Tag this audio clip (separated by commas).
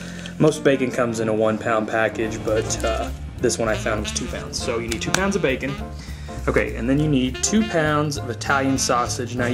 Music, Speech